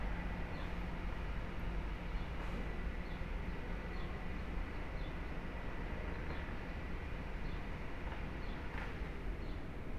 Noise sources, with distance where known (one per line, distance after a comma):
background noise